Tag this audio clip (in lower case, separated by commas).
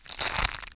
walk